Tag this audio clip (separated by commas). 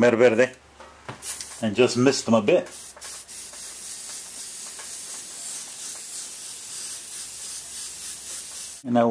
inside a small room, Speech